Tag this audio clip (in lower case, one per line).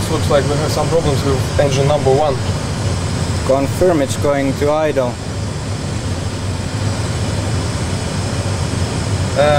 medium engine (mid frequency)
vehicle
engine
speech